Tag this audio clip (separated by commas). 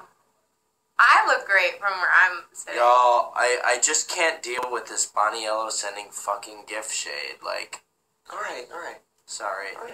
Speech, inside a small room